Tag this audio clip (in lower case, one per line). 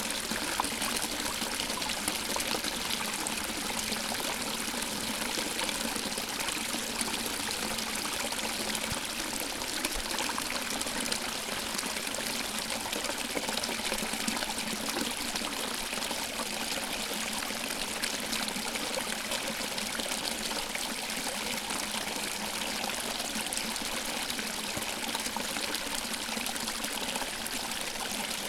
trickle
liquid
stream
water
pour